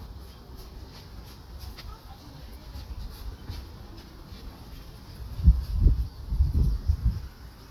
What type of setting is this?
park